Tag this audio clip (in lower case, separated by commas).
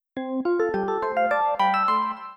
telephone, ringtone, alarm